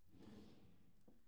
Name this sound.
wooden drawer opening